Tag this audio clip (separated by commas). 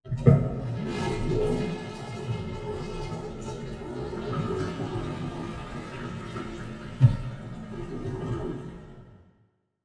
home sounds, Toilet flush